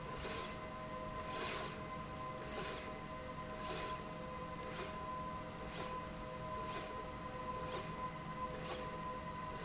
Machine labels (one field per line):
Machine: slide rail